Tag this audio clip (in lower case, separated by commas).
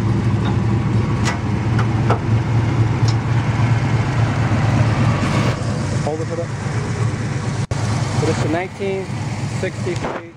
engine, vehicle, car, speech